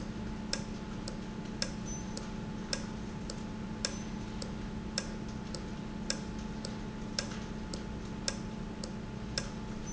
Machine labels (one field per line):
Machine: valve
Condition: normal